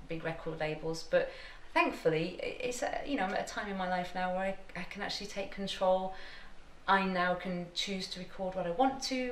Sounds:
Speech

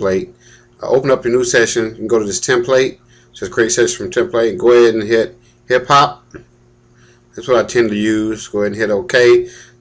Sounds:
Speech

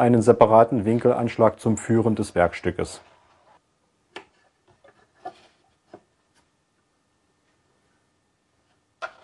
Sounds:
Speech

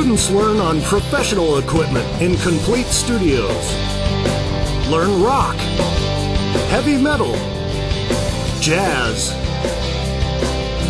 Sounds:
Speech, Music

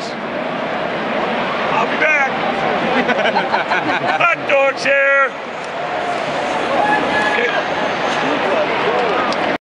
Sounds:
Speech

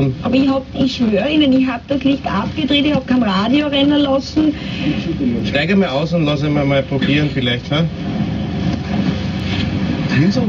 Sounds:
Speech

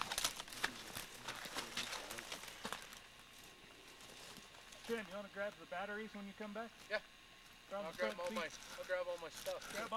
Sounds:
Speech

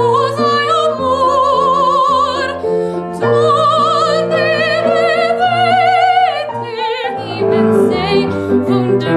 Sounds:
Music, Female singing

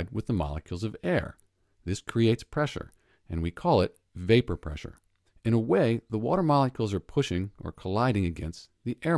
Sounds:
Speech

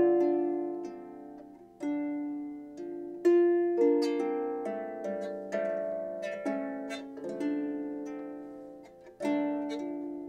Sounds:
Harp, Music

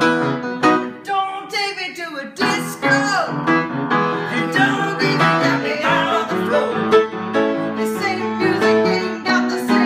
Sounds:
Music, Rock and roll

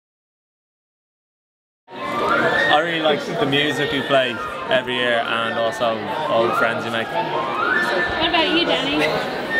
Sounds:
Speech, Music

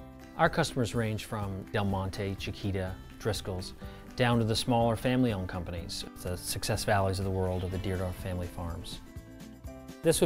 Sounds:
Speech, Music

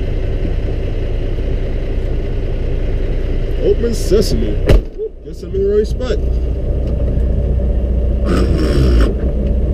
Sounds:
Speech, Vehicle, outside, urban or man-made

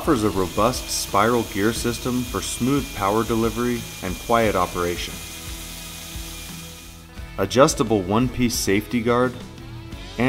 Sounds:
Tools, Music, Speech

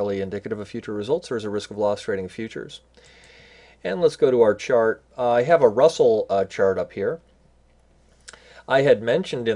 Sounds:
Speech

